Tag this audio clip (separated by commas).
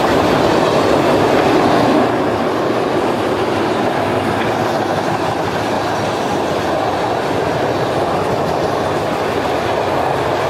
Rail transport, Train, Railroad car, Clickety-clack